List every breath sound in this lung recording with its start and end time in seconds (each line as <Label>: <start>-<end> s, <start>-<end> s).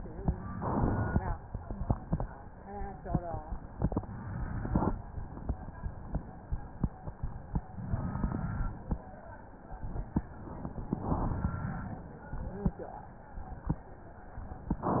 Inhalation: 0.51-1.22 s, 4.02-4.94 s, 7.84-8.86 s, 10.93-11.96 s